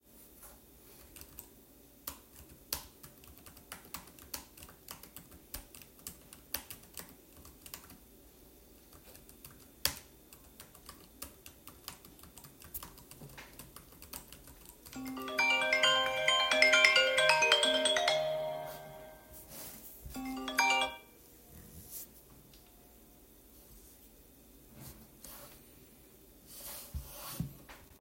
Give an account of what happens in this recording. I was working at my desk and typing on my laptop keyboard. Suddenly, my smartphone placed next to me started ringing with an incoming call. (polyphony)